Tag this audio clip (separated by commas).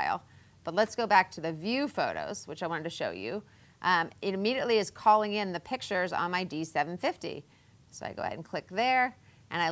Speech